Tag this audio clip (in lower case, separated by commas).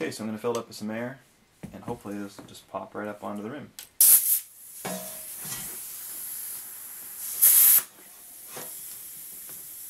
inside a small room, speech